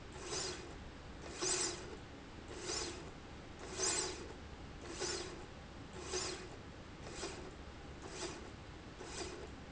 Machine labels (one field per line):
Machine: slide rail